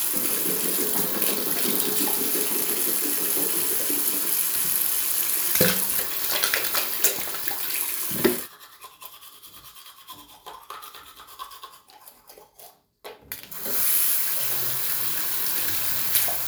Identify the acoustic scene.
restroom